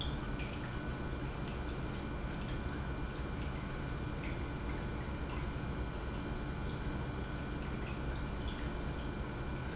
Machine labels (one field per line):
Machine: pump